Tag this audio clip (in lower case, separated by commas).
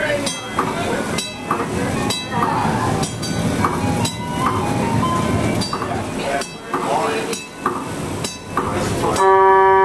bus, musical instrument, vehicle